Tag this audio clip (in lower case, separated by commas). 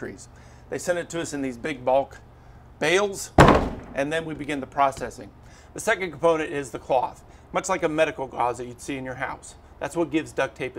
speech